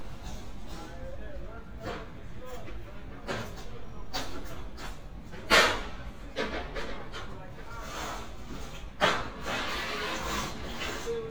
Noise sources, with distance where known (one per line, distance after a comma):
non-machinery impact
unidentified human voice, near